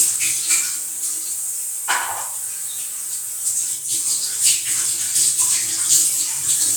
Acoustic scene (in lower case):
restroom